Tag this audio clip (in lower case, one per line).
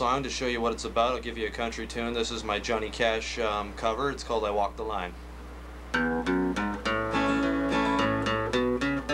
speech
music